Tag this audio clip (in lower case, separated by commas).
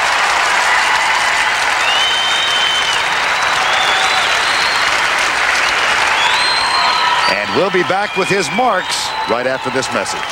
applause